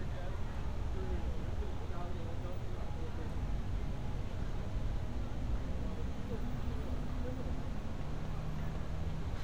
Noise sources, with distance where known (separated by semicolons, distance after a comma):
person or small group talking